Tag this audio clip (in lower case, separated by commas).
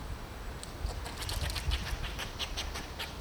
animal, wild animals